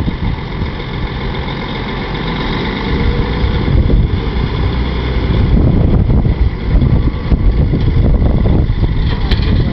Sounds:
Vehicle, Truck

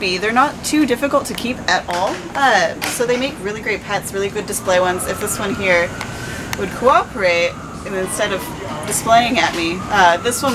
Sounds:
Speech

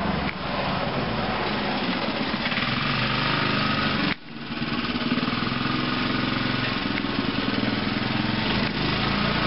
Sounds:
Car, Vehicle

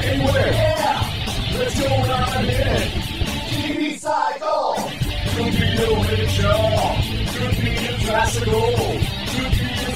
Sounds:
Music

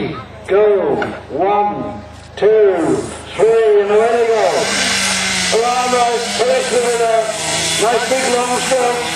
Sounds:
Wood, Sawing

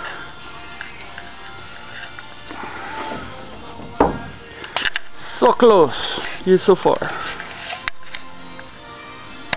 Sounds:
Speech, Door, Music

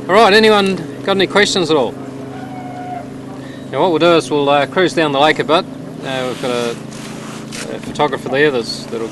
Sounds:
speedboat, Speech

